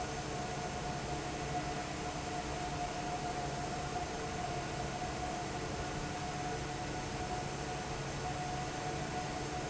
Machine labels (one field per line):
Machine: fan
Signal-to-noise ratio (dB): -6 dB